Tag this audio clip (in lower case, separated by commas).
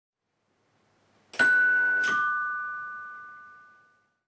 bell, domestic sounds, door